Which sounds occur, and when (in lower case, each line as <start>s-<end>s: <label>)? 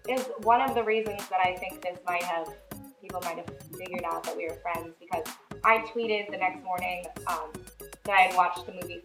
0.0s-2.6s: woman speaking
0.0s-9.0s: music
3.0s-3.5s: woman speaking
3.8s-4.9s: woman speaking
5.0s-5.4s: woman speaking
5.6s-7.0s: woman speaking
7.2s-7.5s: woman speaking
8.0s-8.9s: woman speaking